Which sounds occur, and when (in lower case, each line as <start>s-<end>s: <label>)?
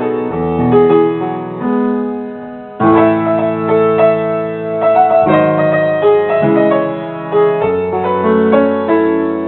0.0s-9.4s: music